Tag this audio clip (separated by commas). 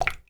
Water, Drip, Liquid